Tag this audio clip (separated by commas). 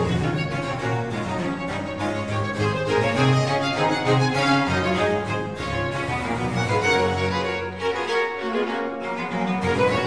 Music